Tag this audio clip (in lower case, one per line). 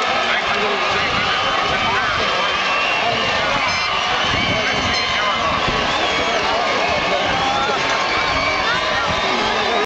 speech